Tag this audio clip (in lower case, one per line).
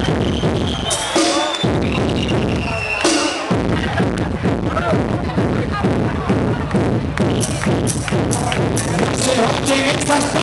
music
speech
percussion